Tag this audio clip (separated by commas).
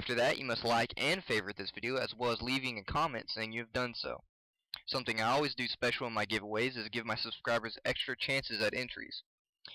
Speech